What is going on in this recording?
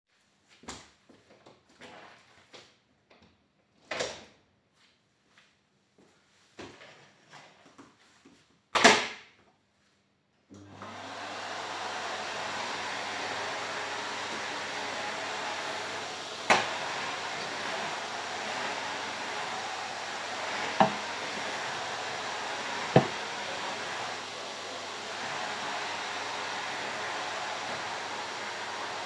I opened the door turned on the vacum and started cleaning the room.